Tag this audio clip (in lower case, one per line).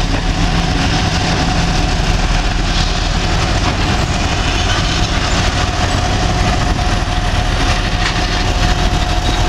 train
rail transport
train wagon